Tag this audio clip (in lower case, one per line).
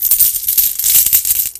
home sounds
coin (dropping)